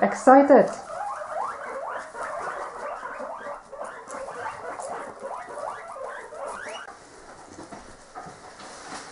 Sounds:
Speech, Animal, pets, Pig

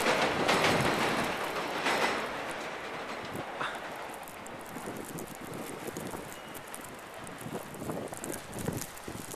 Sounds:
Rail transport

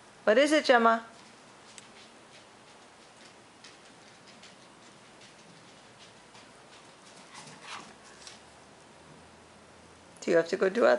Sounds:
Speech

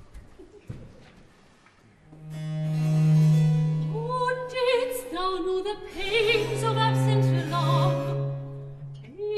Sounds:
Music

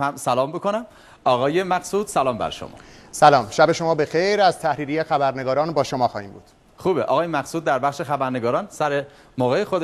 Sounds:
Television, Speech

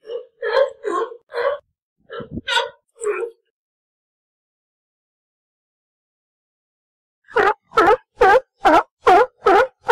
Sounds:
sea lion barking

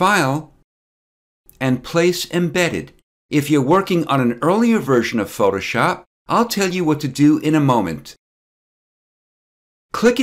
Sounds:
Speech

